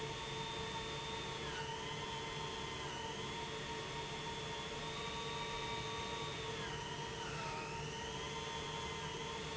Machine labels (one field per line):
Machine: pump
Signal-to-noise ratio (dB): 0 dB